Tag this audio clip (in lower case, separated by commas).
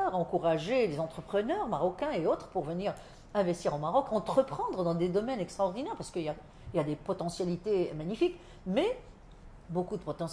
speech